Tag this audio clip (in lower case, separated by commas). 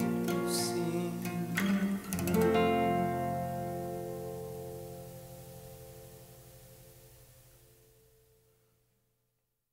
music, strum